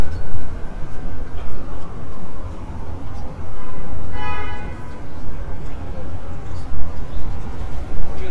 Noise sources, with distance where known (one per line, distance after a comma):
car horn, near
siren
person or small group talking